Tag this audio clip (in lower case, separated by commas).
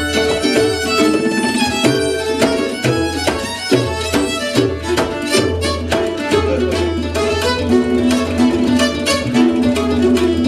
guitar, tabla, bowed string instrument, plucked string instrument, music, musical instrument